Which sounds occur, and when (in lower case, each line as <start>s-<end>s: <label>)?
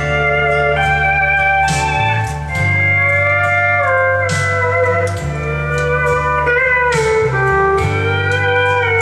0.0s-9.0s: music